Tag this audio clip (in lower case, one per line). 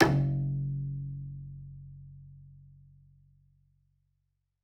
musical instrument
bowed string instrument
music